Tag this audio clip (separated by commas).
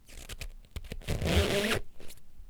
Squeak